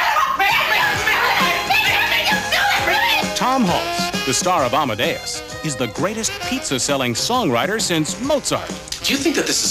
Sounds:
Music, Speech

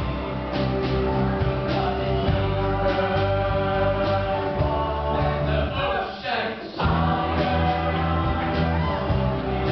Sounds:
inside a large room or hall, Music, Singing

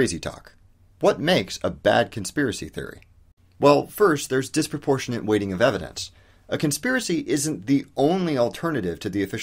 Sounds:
Speech

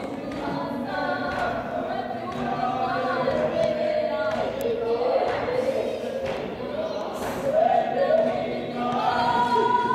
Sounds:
Music

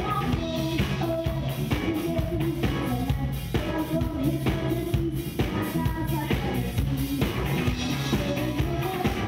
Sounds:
Music

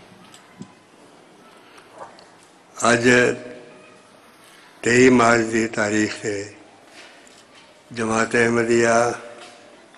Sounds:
Male speech, Speech

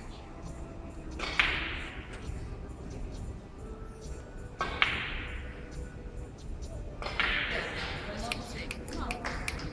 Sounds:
Speech, Music

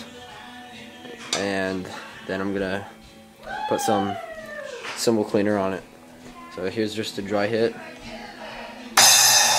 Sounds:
Speech, Music, Musical instrument

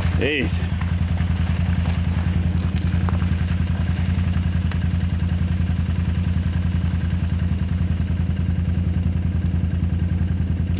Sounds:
bull bellowing

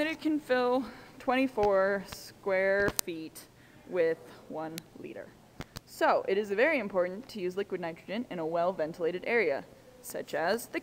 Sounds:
Speech

